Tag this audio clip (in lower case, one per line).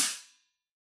music
musical instrument
hi-hat
cymbal
percussion